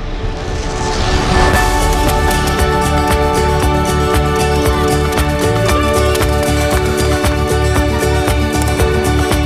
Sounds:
Music

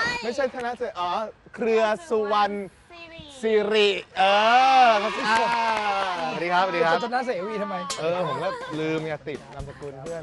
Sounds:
Speech

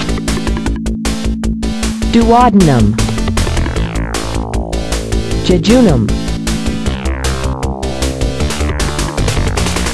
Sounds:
Music, Speech

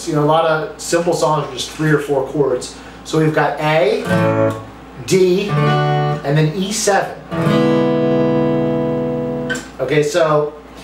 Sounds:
Musical instrument, Acoustic guitar, Strum, Guitar, Music, Speech, Plucked string instrument

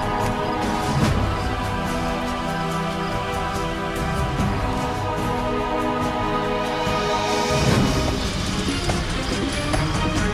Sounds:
Music, Soundtrack music

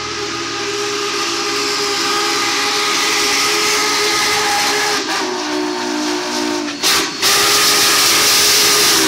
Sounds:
Steam whistle, Hiss, Steam

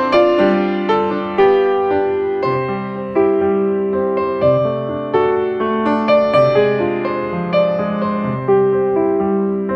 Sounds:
Music

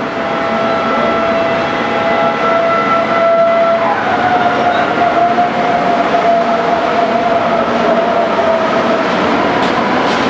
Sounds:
underground

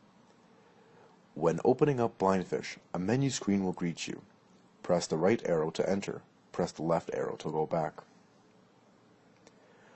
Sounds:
Speech

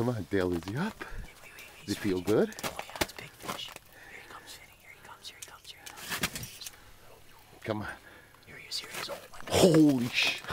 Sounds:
Speech

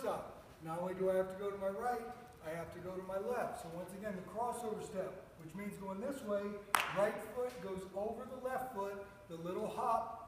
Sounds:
Speech

